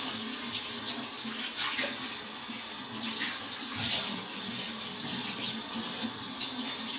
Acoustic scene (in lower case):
kitchen